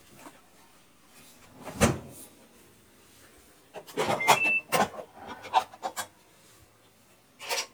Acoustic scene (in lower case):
kitchen